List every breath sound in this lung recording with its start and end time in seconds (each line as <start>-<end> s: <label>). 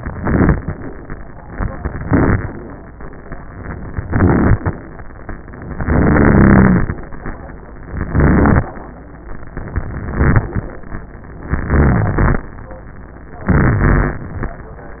0.00-0.72 s: inhalation
1.80-2.52 s: inhalation
3.93-4.76 s: inhalation
5.77-6.96 s: inhalation
7.93-8.67 s: inhalation
9.77-10.72 s: inhalation
11.52-12.47 s: inhalation
13.53-14.55 s: inhalation